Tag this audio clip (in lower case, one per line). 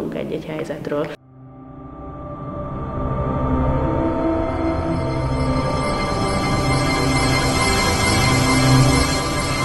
music
speech
scary music